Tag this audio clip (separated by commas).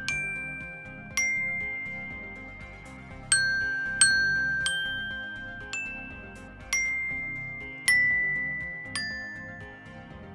playing glockenspiel